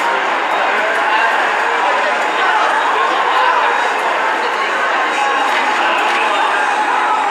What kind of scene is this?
subway station